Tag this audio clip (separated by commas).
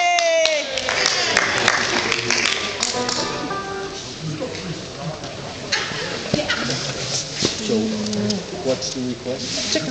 Speech, Music